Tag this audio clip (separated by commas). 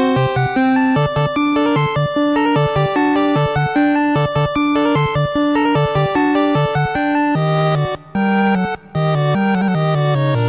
Music, Video game music